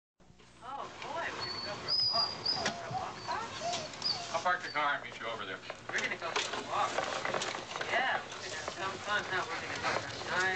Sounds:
speech

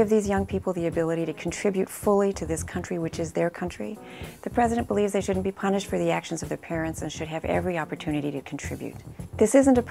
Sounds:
speech
music

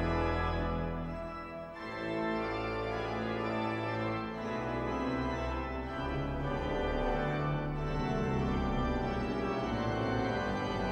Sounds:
music

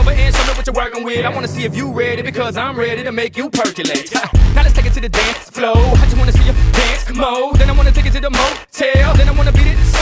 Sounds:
rapping

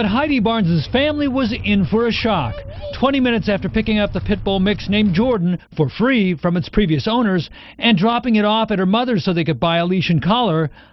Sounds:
speech

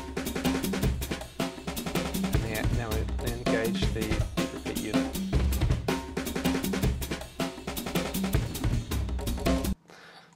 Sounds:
speech
hi-hat
music
inside a small room
snare drum

